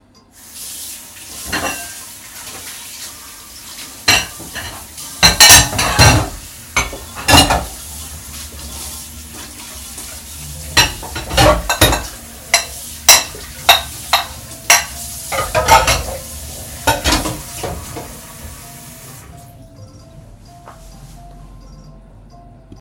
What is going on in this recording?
I was washing dishes under running water while my phone was ringing.